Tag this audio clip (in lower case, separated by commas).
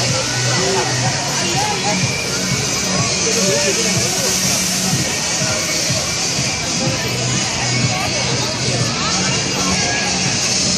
speech, music